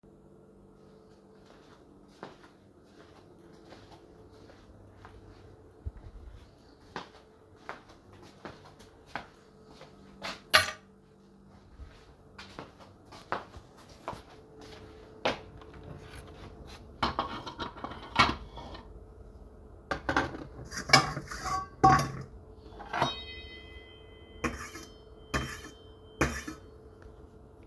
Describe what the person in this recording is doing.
I walk in my room, while dropping my keys on the desk, I also scrape the bottom of a pan with a spatula and move some cutlery around